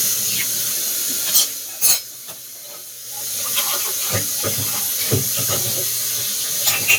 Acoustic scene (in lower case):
kitchen